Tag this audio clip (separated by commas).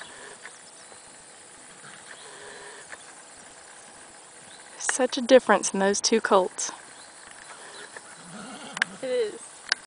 Neigh, Clip-clop, Speech, Animal, Horse